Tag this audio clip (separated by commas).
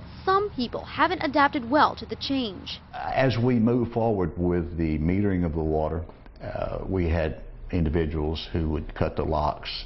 Speech